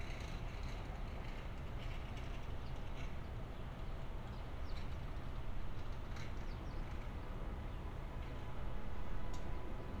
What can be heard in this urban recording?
car horn